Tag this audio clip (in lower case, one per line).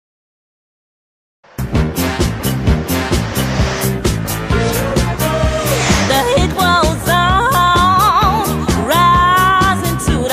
pop music
electronic dance music
electronic music
music